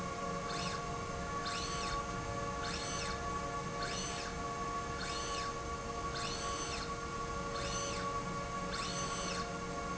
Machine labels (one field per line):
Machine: slide rail